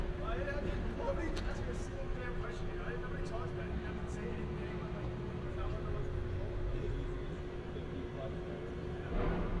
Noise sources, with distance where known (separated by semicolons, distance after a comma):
person or small group talking